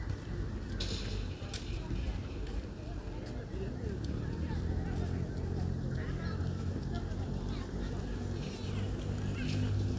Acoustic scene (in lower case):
residential area